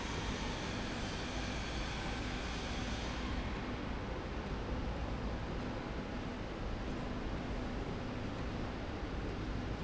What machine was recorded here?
slide rail